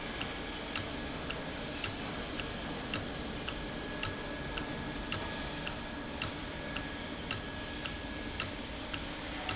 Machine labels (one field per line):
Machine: valve